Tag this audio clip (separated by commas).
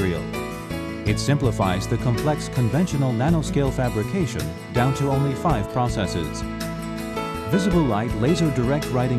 Music, Speech